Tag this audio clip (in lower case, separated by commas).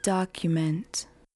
speech, woman speaking, human voice